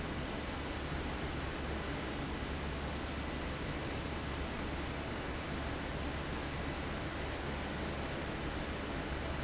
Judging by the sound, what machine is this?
fan